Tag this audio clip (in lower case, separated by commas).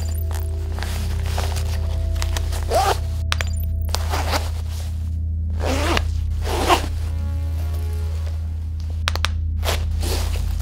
music